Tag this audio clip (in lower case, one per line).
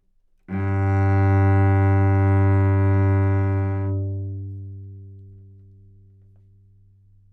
music
bowed string instrument
musical instrument